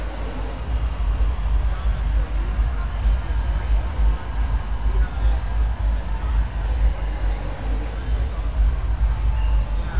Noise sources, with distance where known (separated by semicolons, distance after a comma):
person or small group talking; unidentified human voice